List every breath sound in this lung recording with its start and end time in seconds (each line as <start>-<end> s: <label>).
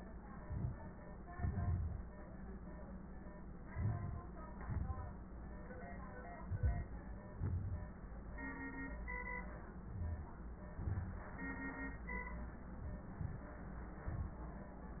0.38-0.93 s: inhalation
1.39-2.01 s: exhalation
3.68-4.23 s: inhalation
4.69-5.24 s: exhalation
6.43-6.91 s: inhalation
7.40-7.88 s: exhalation
9.85-10.32 s: inhalation
10.81-11.29 s: exhalation
13.21-13.49 s: inhalation
14.06-14.46 s: exhalation